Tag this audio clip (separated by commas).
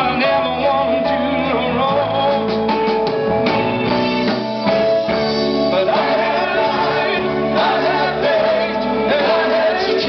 Music